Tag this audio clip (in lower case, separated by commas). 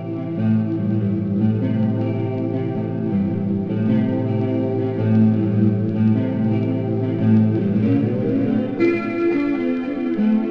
strum, plucked string instrument, musical instrument, music